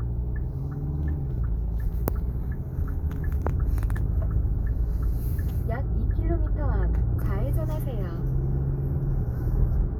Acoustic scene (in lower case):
car